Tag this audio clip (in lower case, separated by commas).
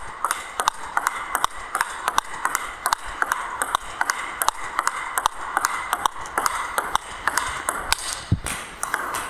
playing table tennis